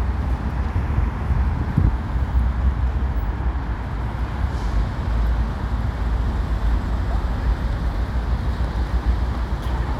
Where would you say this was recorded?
on a street